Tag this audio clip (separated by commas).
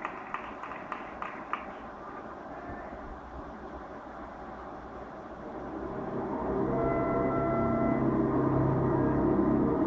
inside a large room or hall, Music